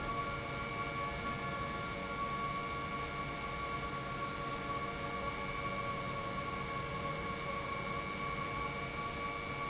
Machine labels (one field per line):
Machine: pump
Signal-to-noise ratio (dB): -6 dB